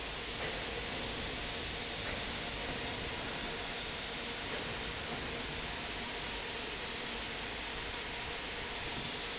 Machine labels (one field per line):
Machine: fan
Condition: normal